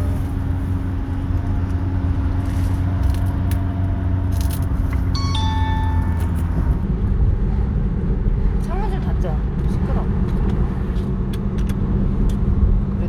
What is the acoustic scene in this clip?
car